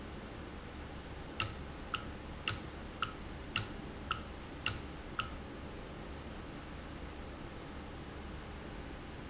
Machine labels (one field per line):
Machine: valve